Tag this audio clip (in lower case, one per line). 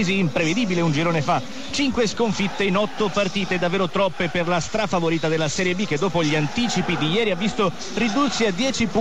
speech